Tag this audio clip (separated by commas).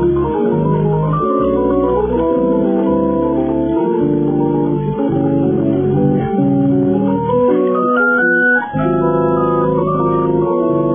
Tender music, Music